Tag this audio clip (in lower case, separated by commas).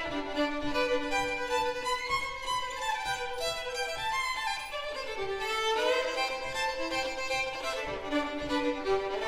musical instrument, music, classical music, fiddle, bowed string instrument